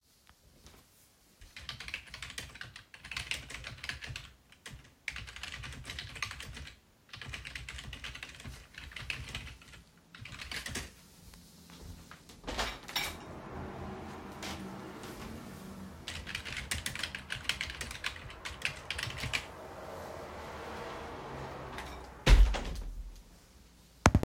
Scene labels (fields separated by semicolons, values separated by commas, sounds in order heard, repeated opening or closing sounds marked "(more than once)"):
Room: bedroom; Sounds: keyboard typing, window (more than once)